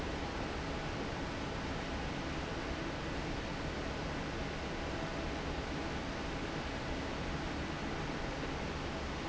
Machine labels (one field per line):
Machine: fan